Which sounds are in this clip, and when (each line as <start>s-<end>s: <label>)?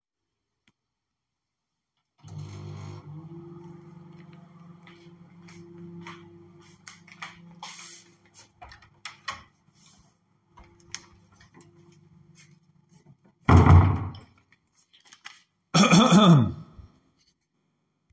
2.2s-15.4s: microwave
4.8s-8.9s: footsteps
8.9s-9.5s: door
13.4s-14.3s: door